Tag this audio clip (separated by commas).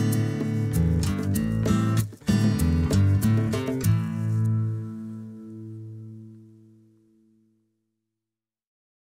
Music